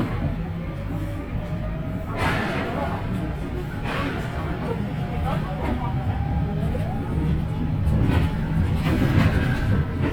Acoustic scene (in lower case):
bus